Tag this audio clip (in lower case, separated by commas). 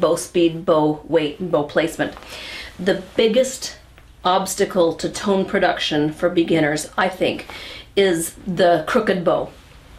speech